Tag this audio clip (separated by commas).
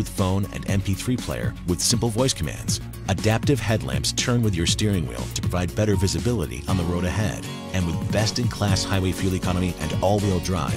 Music, Speech